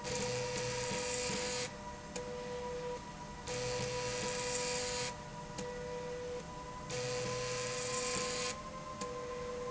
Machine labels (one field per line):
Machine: slide rail